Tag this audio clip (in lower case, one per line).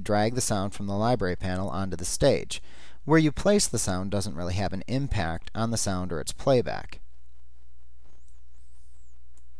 speech